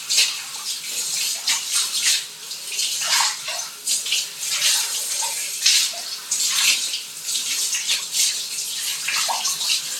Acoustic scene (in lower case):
restroom